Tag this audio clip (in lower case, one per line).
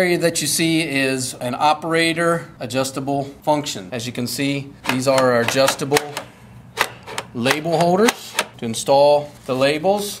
speech